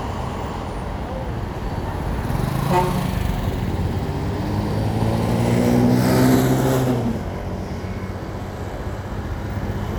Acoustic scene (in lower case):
street